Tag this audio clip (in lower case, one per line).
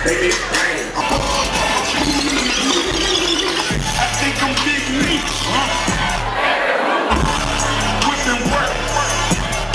speech
music